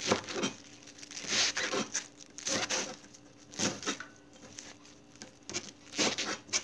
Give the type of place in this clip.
kitchen